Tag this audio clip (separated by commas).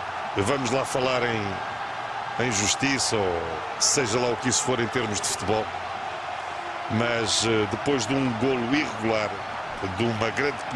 Speech